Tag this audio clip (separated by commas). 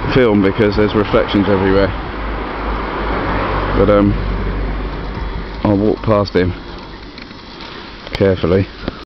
Speech